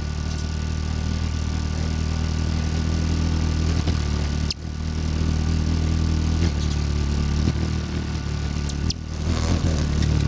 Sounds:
bird wings flapping

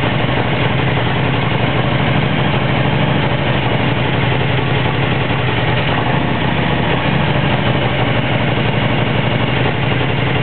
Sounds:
Vehicle

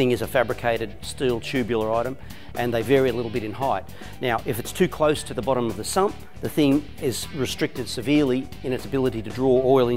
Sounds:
Speech, Music

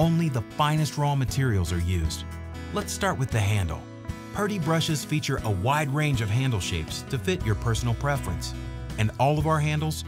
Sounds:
Music, Speech

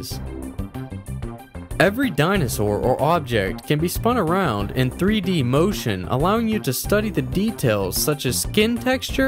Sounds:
Music, Speech

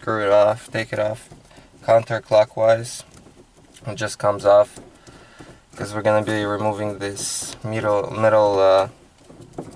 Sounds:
Speech

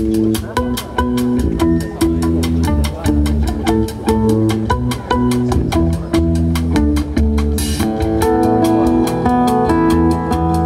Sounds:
Jazz, Music

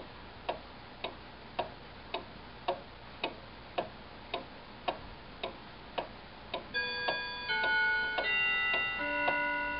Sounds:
Tick-tock

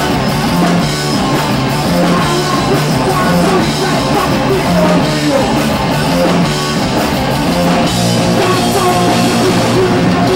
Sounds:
Plucked string instrument, Guitar, Musical instrument, playing electric guitar, Music, Electric guitar

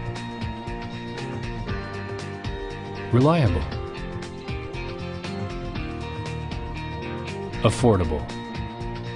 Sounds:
Speech, Music

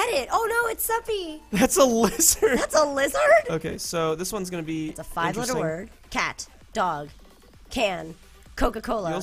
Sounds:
Speech

